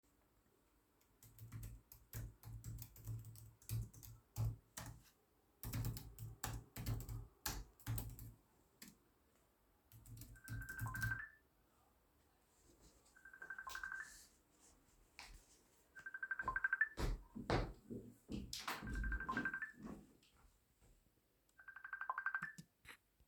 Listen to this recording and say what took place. I was working on my computer. Then i moved my chair. Then I got up becouse my co-worker got a call on his phone but he was not in the room.